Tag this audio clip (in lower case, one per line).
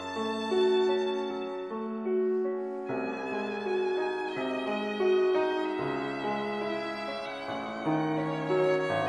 musical instrument
violin
music